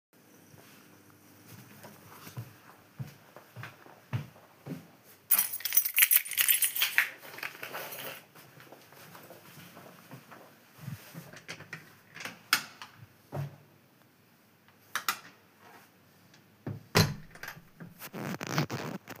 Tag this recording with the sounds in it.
footsteps, keys, door